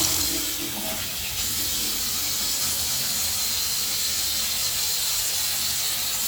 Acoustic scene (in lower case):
restroom